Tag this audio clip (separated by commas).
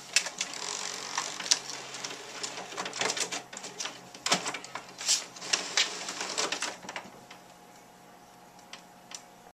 Printer